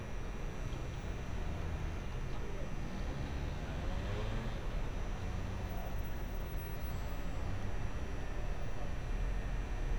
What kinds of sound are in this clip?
engine of unclear size